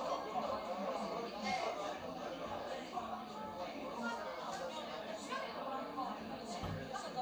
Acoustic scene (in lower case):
crowded indoor space